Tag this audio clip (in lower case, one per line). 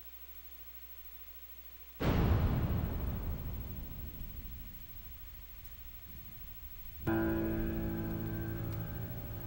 music